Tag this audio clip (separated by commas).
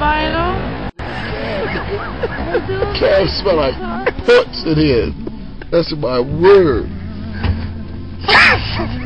outside, urban or man-made, Speech, Music